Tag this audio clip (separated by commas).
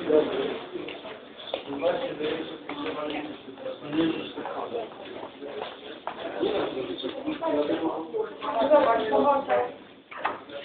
Speech